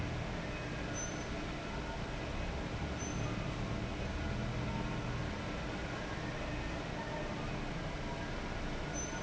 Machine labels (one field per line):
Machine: fan